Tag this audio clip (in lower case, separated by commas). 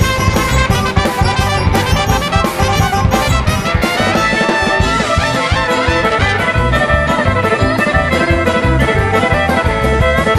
musical instrument, violin, music